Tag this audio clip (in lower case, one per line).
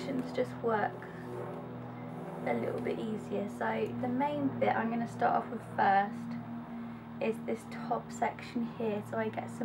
speech
inside a small room